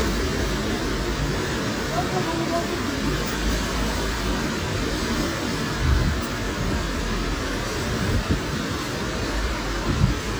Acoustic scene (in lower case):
street